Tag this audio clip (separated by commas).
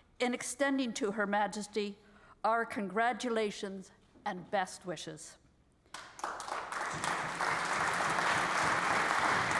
woman speaking, Speech, monologue